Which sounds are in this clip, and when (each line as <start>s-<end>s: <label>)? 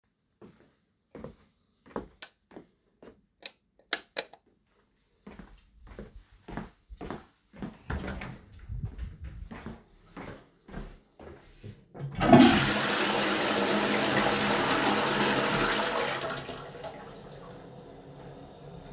0.4s-3.4s: footsteps
2.2s-2.5s: light switch
3.4s-4.4s: light switch
5.2s-7.8s: footsteps
7.9s-8.4s: door
9.5s-11.9s: footsteps
12.1s-17.5s: toilet flushing